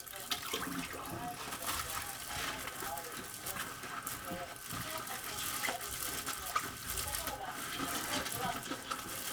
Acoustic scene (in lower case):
kitchen